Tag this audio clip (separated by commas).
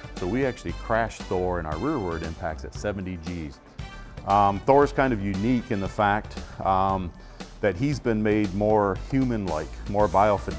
Speech, Music